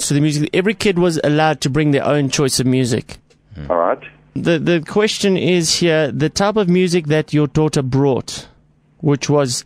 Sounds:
Speech

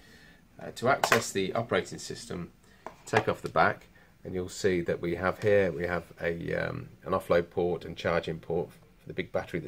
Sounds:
Speech

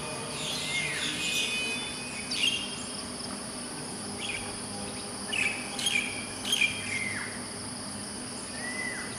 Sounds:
Bird, bird song, bird chirping, Chirp

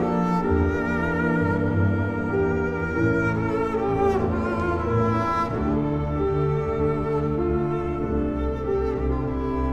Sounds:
playing cello, Cello, Bowed string instrument, Double bass

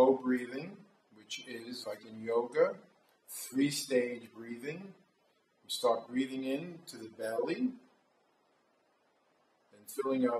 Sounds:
Speech

